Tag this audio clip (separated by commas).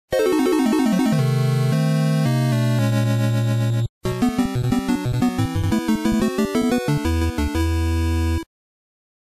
Music